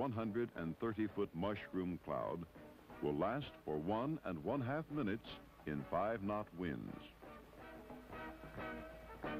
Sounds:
Burst, Speech, Explosion, Music

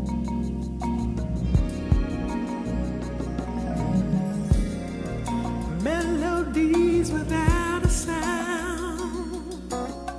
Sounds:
Music

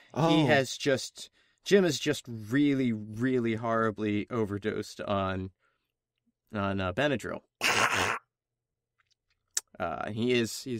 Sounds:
Speech

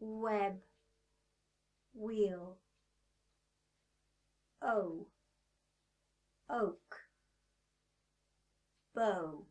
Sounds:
Speech

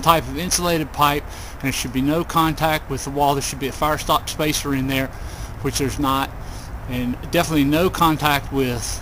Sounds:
Speech

